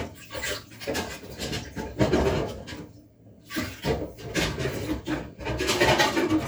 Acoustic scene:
kitchen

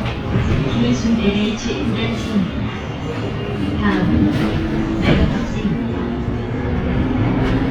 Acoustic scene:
bus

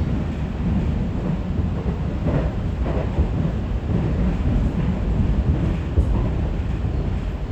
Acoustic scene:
subway train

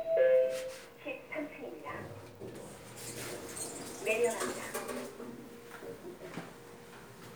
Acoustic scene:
elevator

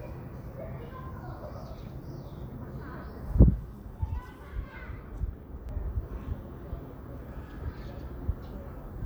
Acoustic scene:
residential area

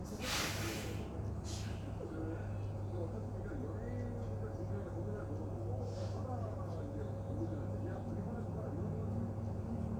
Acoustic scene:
bus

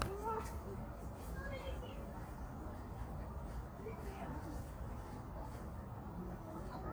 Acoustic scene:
park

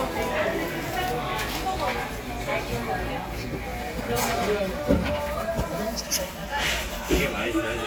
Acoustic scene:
cafe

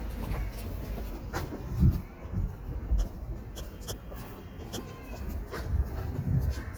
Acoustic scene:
street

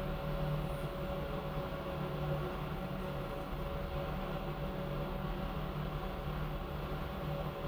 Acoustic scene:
elevator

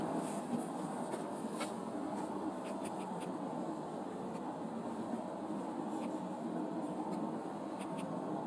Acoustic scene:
car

